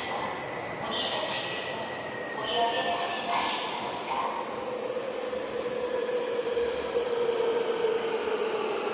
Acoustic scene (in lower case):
subway station